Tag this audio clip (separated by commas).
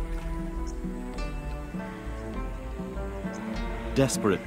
Speech, Music